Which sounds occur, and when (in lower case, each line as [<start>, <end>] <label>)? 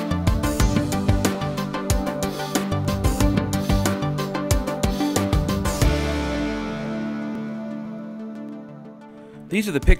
[0.00, 9.95] music
[9.44, 9.95] man speaking